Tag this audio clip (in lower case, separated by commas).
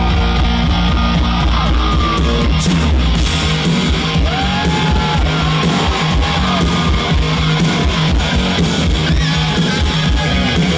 pop music, music